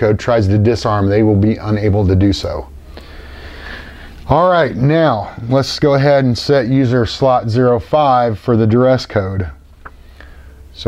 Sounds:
Speech

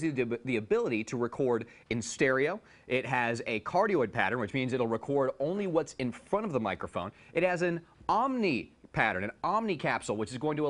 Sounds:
Speech

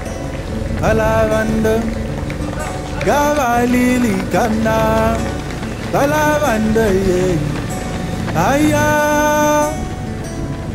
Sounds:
outside, rural or natural, Music, Run

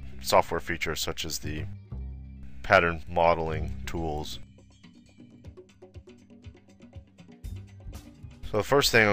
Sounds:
Music, Speech

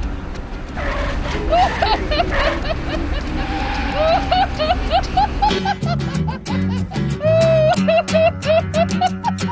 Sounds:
Vehicle, Car, Music

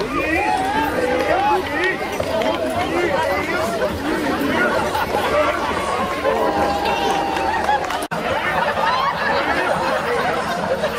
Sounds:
Speech

